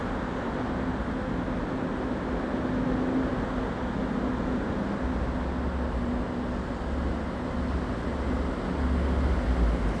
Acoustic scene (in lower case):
residential area